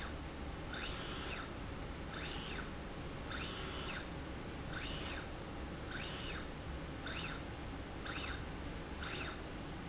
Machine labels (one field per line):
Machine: slide rail